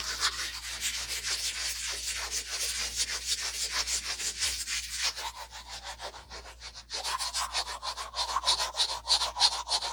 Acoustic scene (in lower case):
restroom